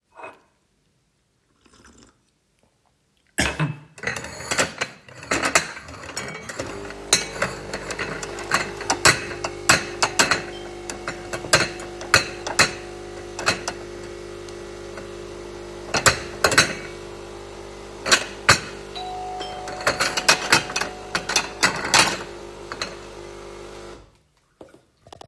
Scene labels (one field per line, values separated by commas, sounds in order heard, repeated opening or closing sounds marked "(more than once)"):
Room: kitchen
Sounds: cutlery and dishes, coffee machine, bell ringing